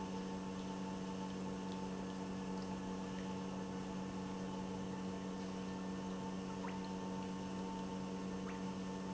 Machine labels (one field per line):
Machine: pump